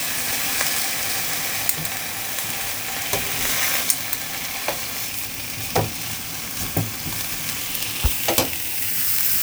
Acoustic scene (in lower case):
kitchen